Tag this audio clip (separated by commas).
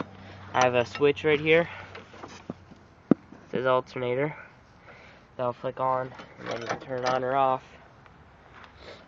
Speech